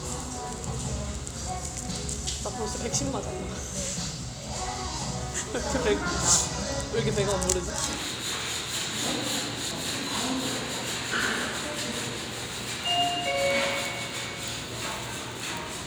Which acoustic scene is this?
restaurant